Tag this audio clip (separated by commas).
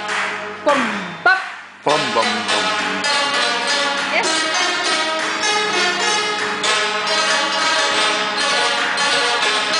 Zither, Pizzicato